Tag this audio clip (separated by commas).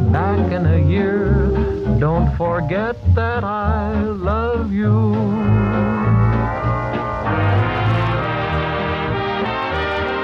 Electronic music, Music